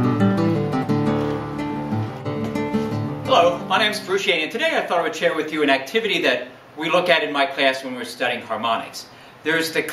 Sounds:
Speech, Music

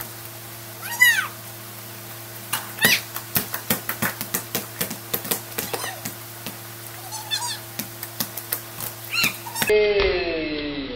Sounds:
Speech, Basketball bounce

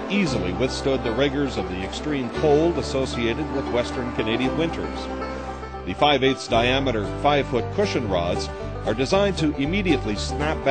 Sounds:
Speech, Music

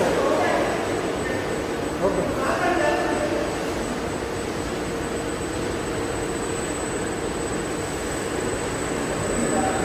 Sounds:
Tools, Power tool

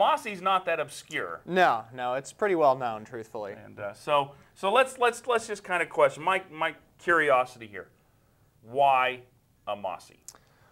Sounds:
Speech

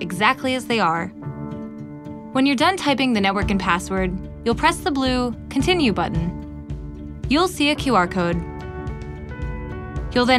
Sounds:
Music, Speech

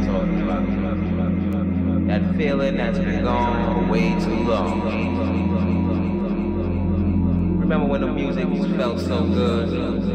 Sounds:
Speech

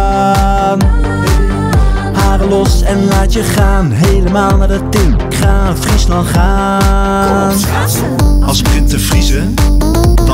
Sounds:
Music, Pop music

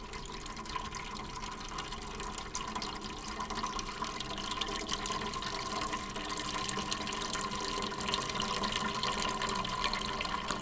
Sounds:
Gurgling

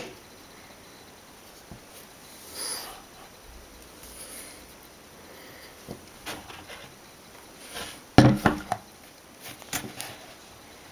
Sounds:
inside a small room

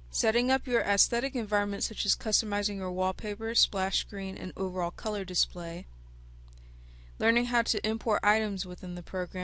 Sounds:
Speech

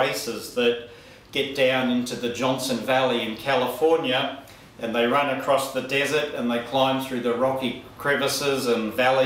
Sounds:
Speech

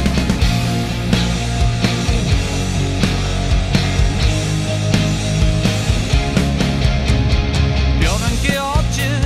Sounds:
Music

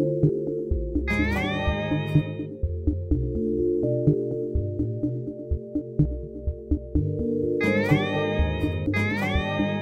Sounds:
Synthesizer, Music

